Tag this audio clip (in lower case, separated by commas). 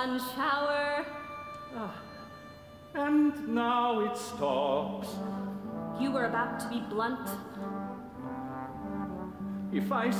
speech, music